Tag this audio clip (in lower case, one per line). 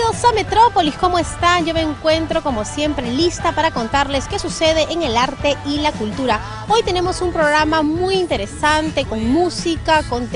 music
speech